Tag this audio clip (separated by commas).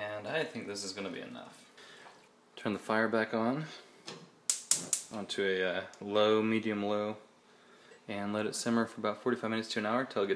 Speech, inside a small room